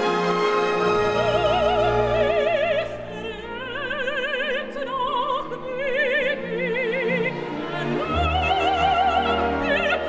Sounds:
Music

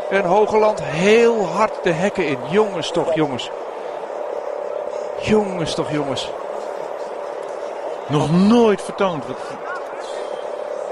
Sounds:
Speech, Vehicle

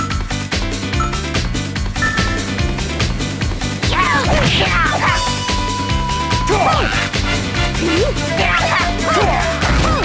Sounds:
Music

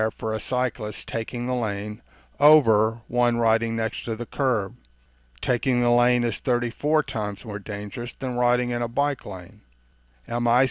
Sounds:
Speech

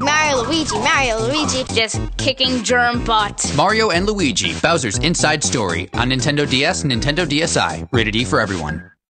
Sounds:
Speech, Music

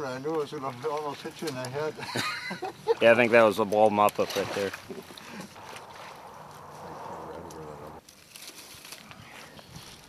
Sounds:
Speech, outside, rural or natural, Bird

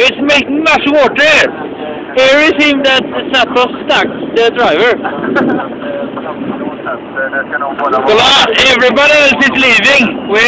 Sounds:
Speech

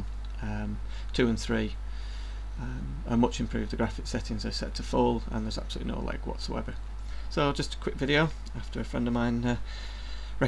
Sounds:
Speech

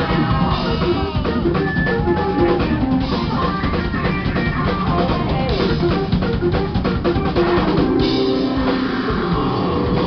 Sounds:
Music, Progressive rock, Heavy metal, Rock music

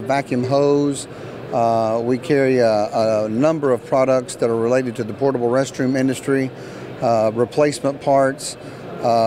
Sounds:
Speech

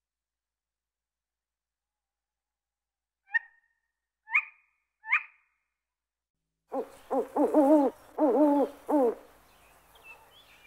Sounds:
owl hooting

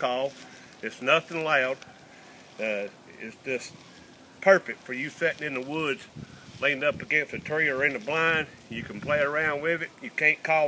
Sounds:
Speech

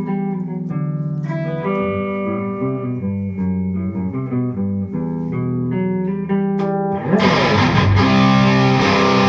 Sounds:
Guitar, Music, Musical instrument, Plucked string instrument, Electric guitar, playing electric guitar

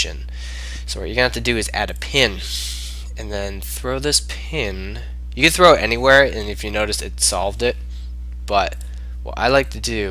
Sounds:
Speech

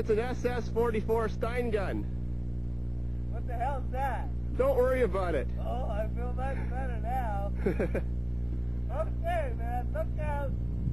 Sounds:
Speech

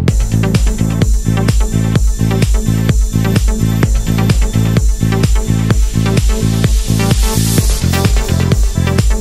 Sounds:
Disco, Music, Pop music

